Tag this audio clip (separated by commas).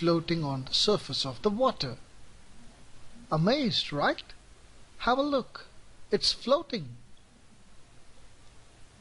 inside a small room, Speech